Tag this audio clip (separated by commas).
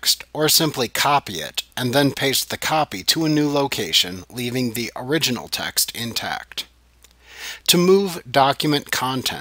monologue